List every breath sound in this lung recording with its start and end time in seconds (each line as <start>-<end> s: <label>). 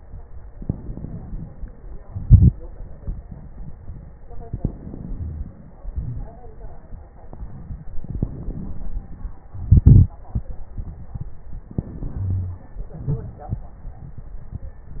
0.40-2.03 s: inhalation
0.40-2.03 s: crackles
2.04-4.13 s: crackles
2.06-4.18 s: exhalation
4.18-5.84 s: inhalation
4.18-5.84 s: crackles
5.86-8.00 s: exhalation
5.86-8.00 s: crackles
8.01-9.52 s: inhalation
8.01-9.52 s: crackles
9.54-11.68 s: exhalation
9.54-11.68 s: crackles
11.67-12.87 s: inhalation
12.23-12.63 s: wheeze
12.87-15.00 s: crackles
12.88-15.00 s: exhalation